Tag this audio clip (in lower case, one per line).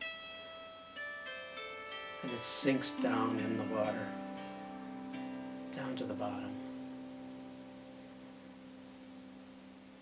plucked string instrument
music
speech
harp
musical instrument